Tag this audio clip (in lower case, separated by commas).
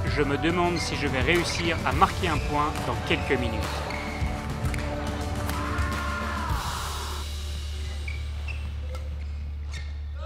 playing badminton